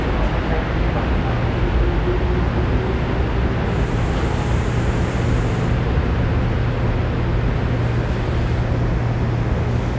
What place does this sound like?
subway train